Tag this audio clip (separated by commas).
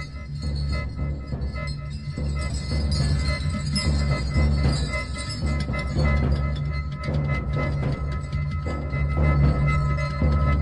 Music